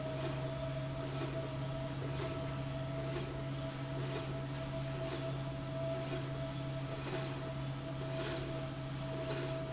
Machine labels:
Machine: slide rail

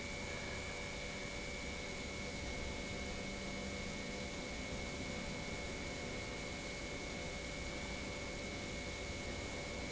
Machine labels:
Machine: pump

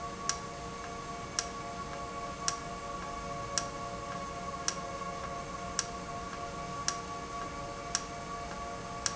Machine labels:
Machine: valve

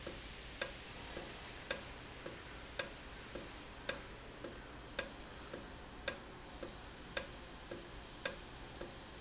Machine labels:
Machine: valve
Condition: normal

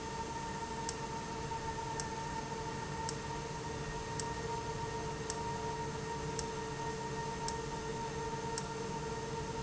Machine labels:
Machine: valve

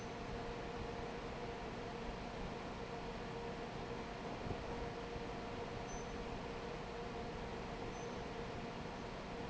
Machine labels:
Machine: fan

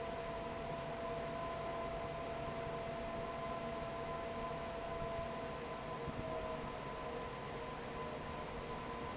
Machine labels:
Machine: fan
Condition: normal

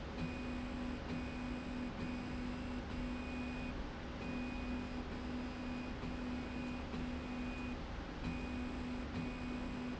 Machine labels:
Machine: slide rail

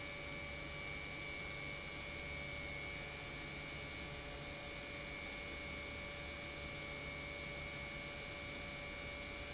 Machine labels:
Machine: pump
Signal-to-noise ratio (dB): 6 dB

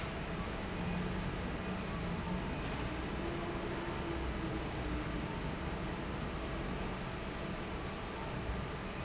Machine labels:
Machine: fan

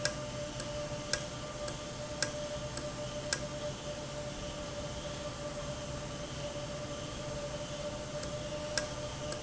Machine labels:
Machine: valve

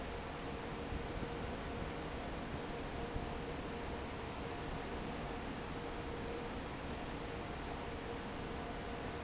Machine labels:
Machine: fan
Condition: normal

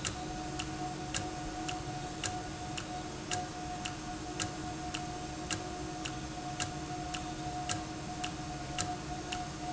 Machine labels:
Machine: valve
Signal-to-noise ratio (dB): -6 dB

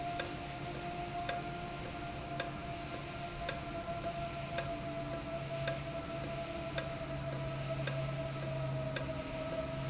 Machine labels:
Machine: valve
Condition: normal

